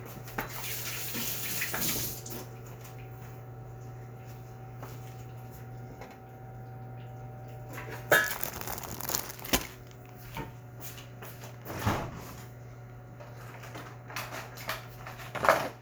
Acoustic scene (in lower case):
kitchen